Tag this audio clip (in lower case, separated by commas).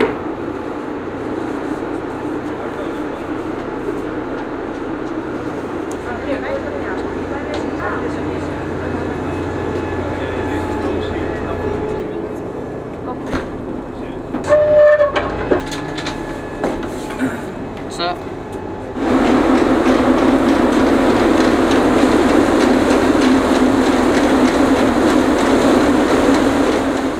water vehicle, vehicle